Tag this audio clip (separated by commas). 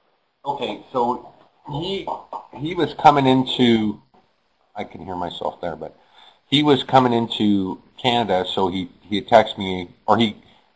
Speech